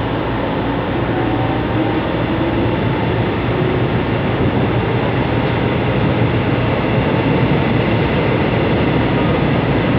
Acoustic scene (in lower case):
subway train